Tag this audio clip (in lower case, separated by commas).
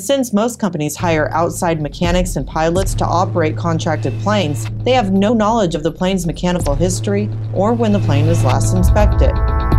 music, speech